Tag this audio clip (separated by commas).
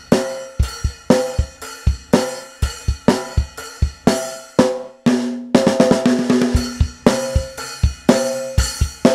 Drum, Musical instrument, Drum kit, Music